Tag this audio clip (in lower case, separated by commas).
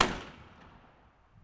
fireworks, explosion